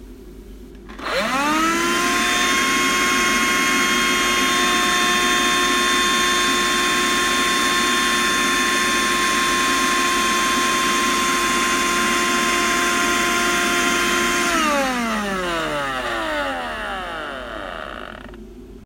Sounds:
home sounds

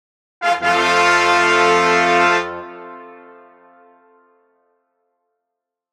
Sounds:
brass instrument, music, musical instrument

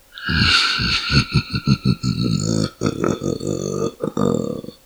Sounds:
human voice, laughter

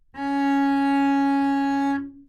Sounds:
music, bowed string instrument, musical instrument

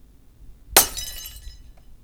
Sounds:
glass, shatter

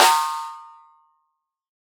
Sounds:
musical instrument, drum, music, percussion, snare drum

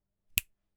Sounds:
finger snapping, hands

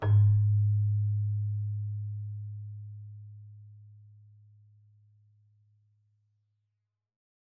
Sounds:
keyboard (musical), musical instrument, music

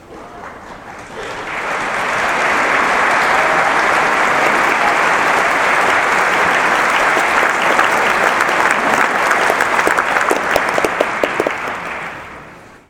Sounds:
human group actions, applause

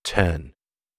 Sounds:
speech, human voice

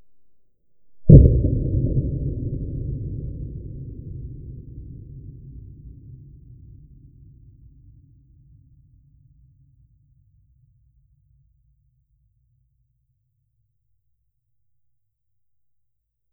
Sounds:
explosion, boom

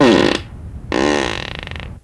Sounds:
fart

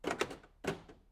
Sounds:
motor vehicle (road), vehicle, car

